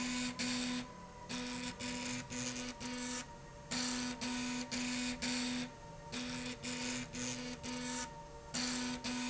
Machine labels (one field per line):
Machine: slide rail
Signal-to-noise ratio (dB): 6 dB